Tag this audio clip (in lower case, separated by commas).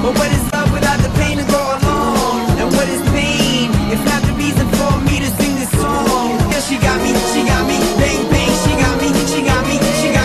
music